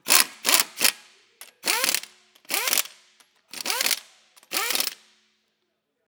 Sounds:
Tools

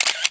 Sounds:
Camera, Mechanisms

